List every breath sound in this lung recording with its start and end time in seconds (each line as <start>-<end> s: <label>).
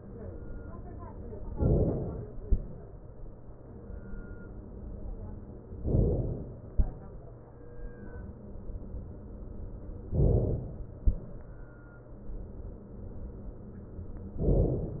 1.50-2.47 s: inhalation
5.84-6.70 s: inhalation
10.08-11.07 s: inhalation
14.40-15.00 s: inhalation